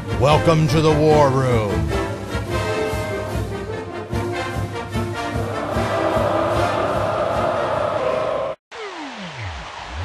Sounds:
Speech, Music

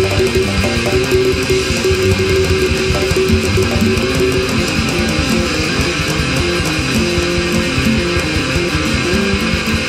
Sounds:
Disco, Music

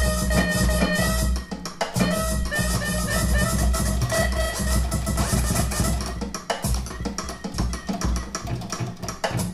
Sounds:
Musical instrument, Scratching (performance technique), Music

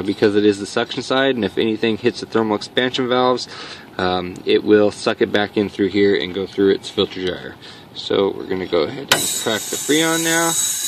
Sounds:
Speech

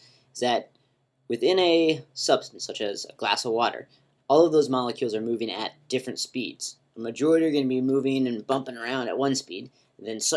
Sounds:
Speech

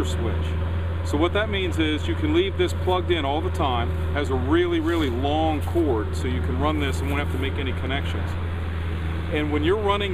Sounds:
Speech

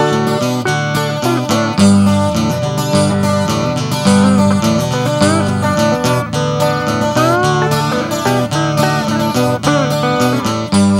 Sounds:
Music

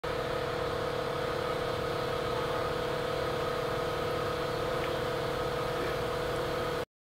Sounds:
Boat, Motorboat, Vehicle

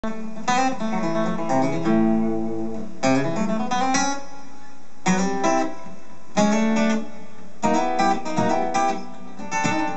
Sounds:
Musical instrument, Music, Bluegrass

